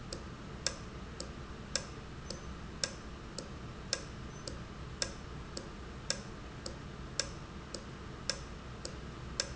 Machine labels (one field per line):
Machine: valve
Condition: normal